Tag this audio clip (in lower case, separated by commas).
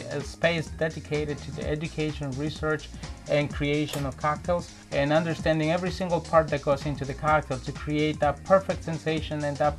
music, speech